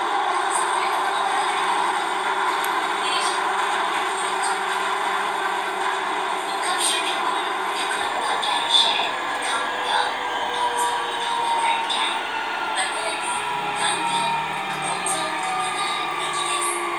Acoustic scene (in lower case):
subway train